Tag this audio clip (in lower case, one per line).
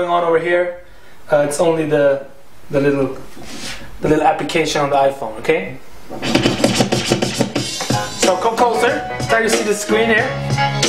scratching (performance technique)
music
speech